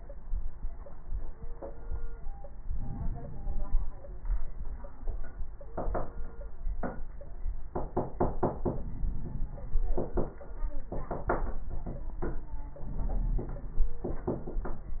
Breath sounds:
2.59-3.99 s: inhalation
8.51-9.92 s: inhalation
12.81-14.23 s: inhalation

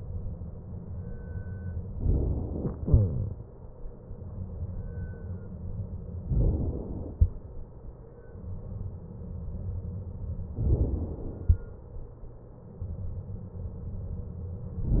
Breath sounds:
1.96-2.89 s: inhalation
2.89-4.25 s: exhalation
6.22-7.20 s: inhalation
7.20-8.81 s: exhalation
10.63-11.49 s: inhalation

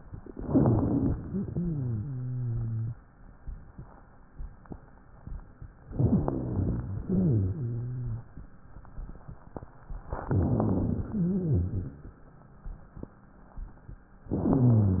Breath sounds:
0.34-1.18 s: inhalation
0.34-1.18 s: wheeze
1.25-2.13 s: exhalation
1.25-2.87 s: wheeze
5.90-6.98 s: inhalation
5.90-6.98 s: wheeze
7.08-8.27 s: exhalation
7.08-8.27 s: wheeze
10.15-11.10 s: inhalation
10.15-11.10 s: rhonchi
11.12-12.18 s: exhalation
11.12-12.18 s: wheeze

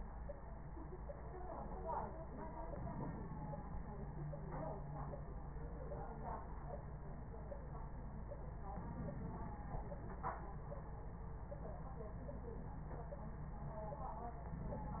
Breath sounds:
2.62-3.79 s: inhalation
8.71-9.68 s: inhalation
14.45-15.00 s: inhalation

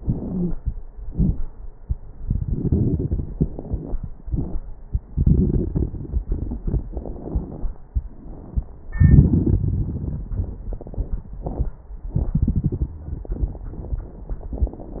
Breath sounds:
0.00-0.52 s: inhalation
0.19-0.55 s: wheeze
1.06-1.37 s: exhalation
1.06-1.37 s: crackles

